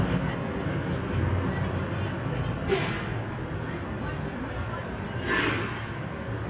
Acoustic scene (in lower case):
bus